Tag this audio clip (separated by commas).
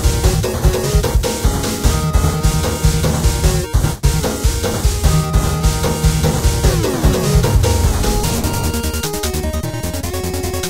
Music